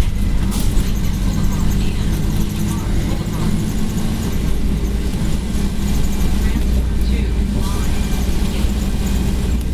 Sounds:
Bus, Speech, Vehicle

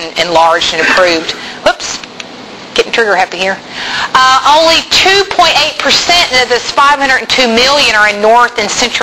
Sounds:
Speech

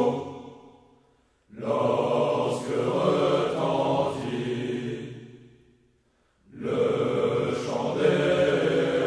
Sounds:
Mantra

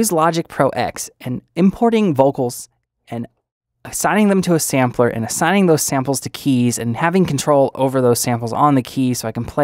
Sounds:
Speech

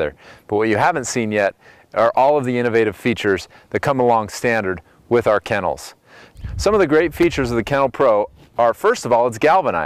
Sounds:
Speech

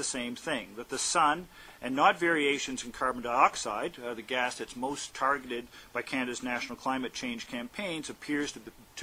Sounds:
inside a large room or hall, Speech

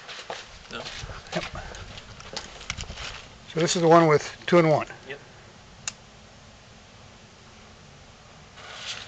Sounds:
Speech

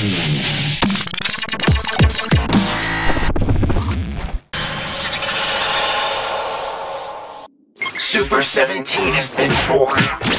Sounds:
Dubstep

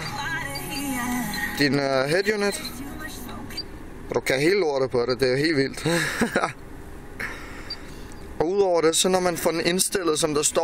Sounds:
Speech, Music

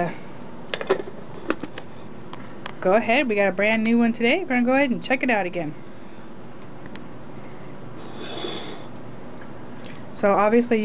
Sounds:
Speech

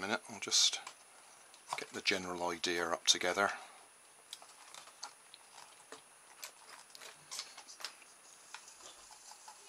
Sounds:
Speech, inside a small room

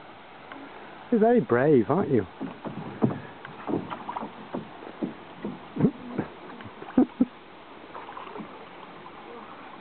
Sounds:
Boat, Rowboat

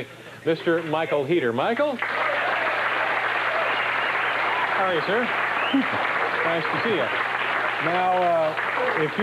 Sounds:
Speech

